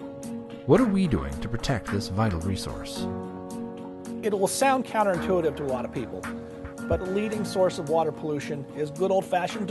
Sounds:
Speech, Music

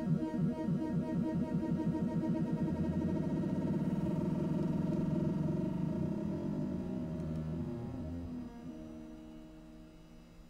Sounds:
Synthesizer

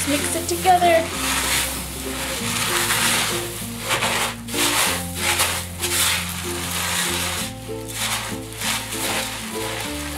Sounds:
inside a small room, Speech, Music

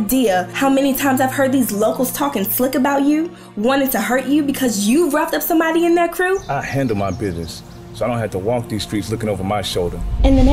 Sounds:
Speech, Music

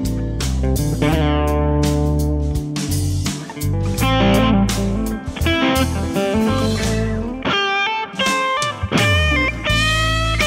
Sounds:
Musical instrument, Electric guitar, Guitar, Music, Plucked string instrument

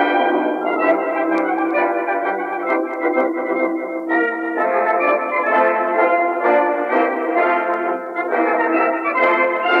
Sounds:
Musical instrument, Music

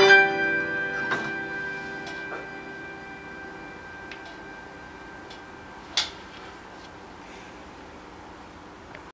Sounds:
Piano, Keyboard (musical), Musical instrument, Music, Electric piano

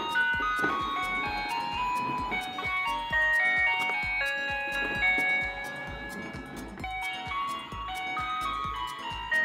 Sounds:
ice cream truck

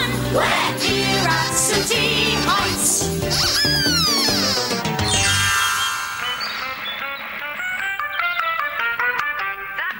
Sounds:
Music

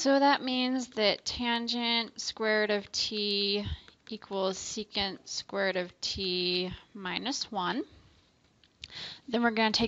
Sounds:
Speech

